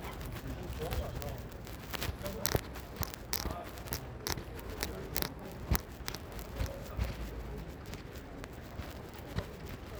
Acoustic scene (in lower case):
residential area